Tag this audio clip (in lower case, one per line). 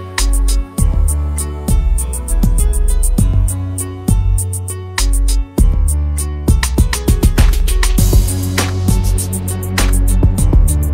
music